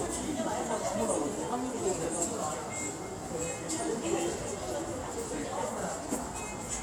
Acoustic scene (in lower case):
subway station